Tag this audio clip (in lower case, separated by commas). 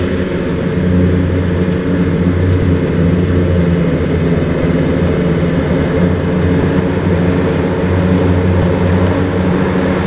vehicle